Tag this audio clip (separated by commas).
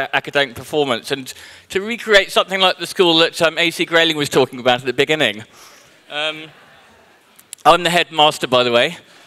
Musical instrument, Music, Speech, Plucked string instrument